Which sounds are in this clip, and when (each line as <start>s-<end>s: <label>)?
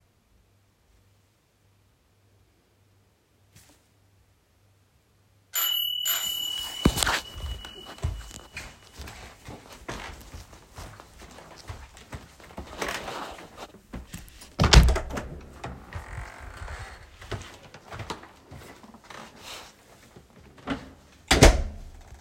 5.6s-8.8s: bell ringing
8.9s-14.4s: footsteps
14.6s-17.2s: door
20.8s-22.2s: door